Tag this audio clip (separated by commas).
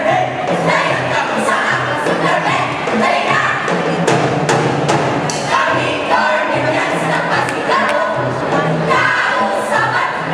Music, Jazz